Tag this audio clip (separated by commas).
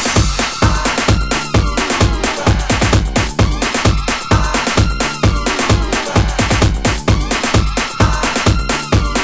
Music